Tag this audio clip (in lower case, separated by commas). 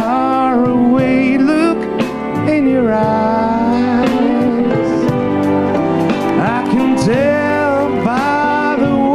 music